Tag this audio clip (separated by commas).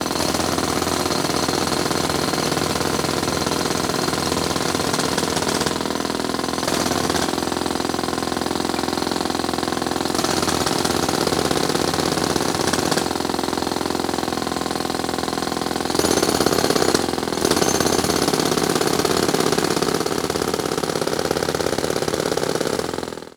Tools